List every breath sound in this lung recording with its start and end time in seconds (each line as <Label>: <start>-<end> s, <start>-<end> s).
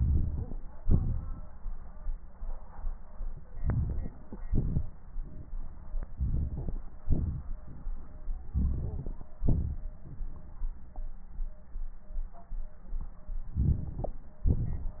Inhalation: 0.00-0.55 s, 3.61-4.08 s, 6.14-6.83 s, 8.54-9.32 s, 13.57-14.18 s
Exhalation: 0.80-1.46 s, 4.50-4.97 s, 7.06-7.47 s, 9.44-9.82 s, 14.49-15.00 s